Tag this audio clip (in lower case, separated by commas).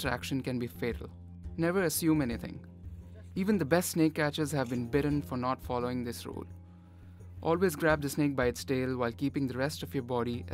music, speech